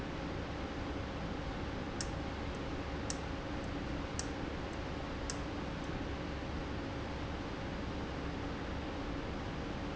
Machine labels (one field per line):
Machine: valve